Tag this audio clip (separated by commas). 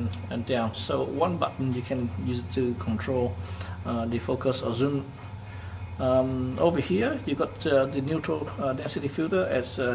Speech